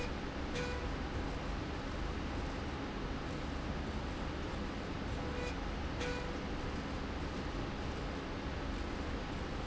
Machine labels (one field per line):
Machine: slide rail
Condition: normal